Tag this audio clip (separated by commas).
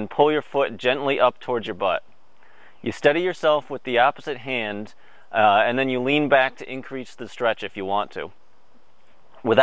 Male speech, outside, rural or natural, Speech